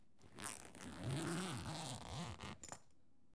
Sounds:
Zipper (clothing), home sounds

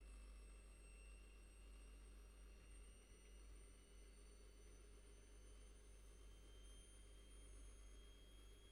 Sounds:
Engine

